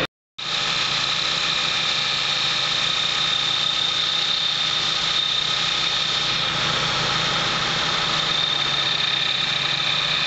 Vibrating sound of a working motor